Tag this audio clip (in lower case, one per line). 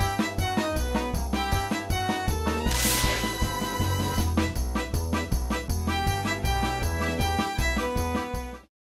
music